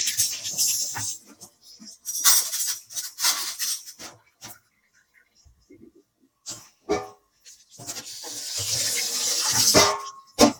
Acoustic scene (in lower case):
kitchen